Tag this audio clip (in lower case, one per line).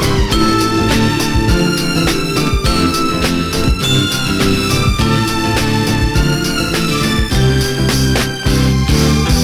music
psychedelic rock